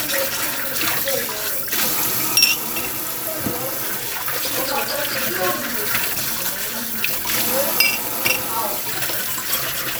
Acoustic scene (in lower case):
kitchen